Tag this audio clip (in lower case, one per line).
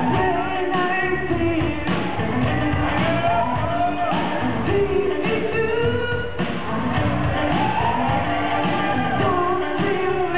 music